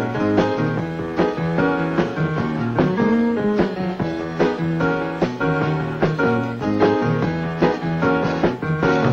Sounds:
Music

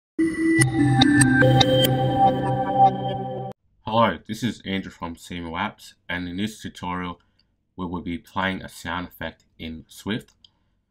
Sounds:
Music, Speech

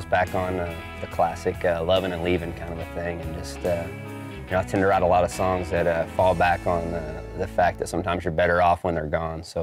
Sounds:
Speech, Music, Soundtrack music

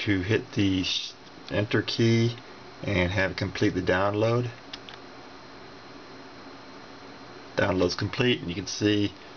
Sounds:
Speech

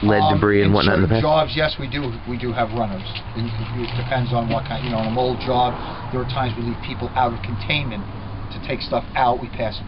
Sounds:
Speech

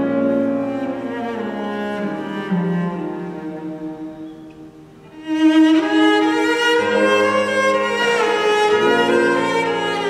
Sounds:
Music, Cello, Musical instrument

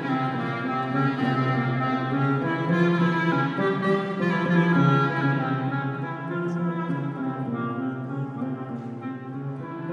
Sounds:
Plucked string instrument, Acoustic guitar, Music, Guitar, Strum, Musical instrument

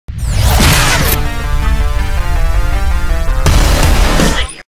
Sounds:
Music

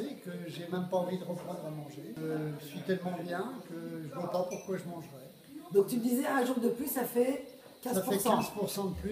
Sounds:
Speech

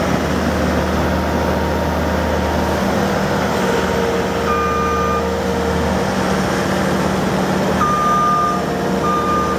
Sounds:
Vehicle, outside, rural or natural

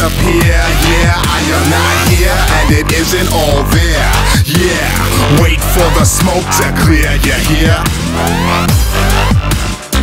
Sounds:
Dubstep, Music

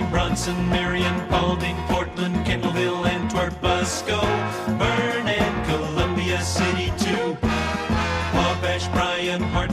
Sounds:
Music

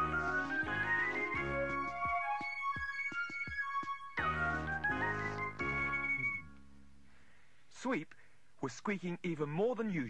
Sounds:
Speech, Music

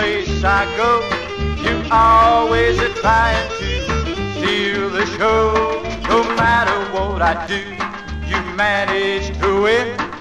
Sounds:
Music

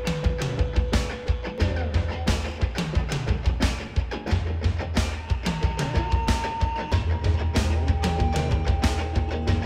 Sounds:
Music

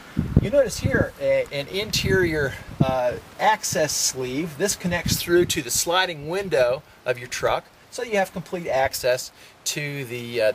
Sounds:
Speech

